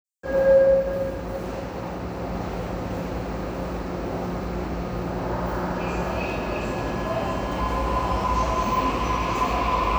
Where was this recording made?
in a subway station